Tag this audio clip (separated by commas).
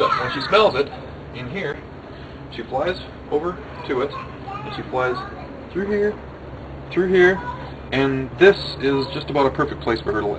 Speech